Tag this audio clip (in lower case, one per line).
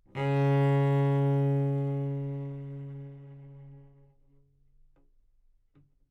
music
bowed string instrument
musical instrument